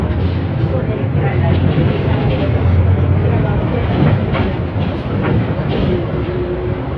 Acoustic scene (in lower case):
bus